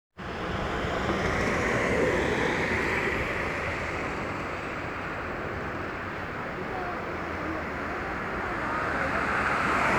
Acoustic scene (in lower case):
street